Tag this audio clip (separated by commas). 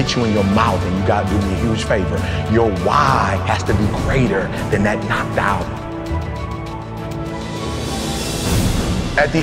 Music, Theme music, Speech